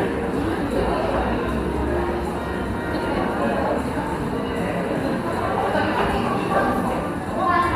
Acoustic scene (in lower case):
cafe